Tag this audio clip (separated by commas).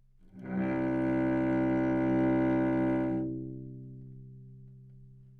Musical instrument, Music, Bowed string instrument